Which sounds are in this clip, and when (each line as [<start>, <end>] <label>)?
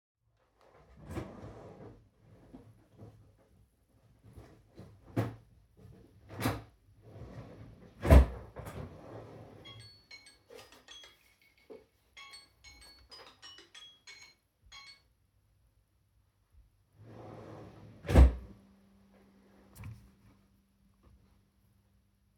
[1.01, 2.18] wardrobe or drawer
[5.14, 5.42] wardrobe or drawer
[6.29, 6.65] wardrobe or drawer
[6.99, 10.09] wardrobe or drawer
[9.60, 15.10] phone ringing
[16.90, 22.38] wardrobe or drawer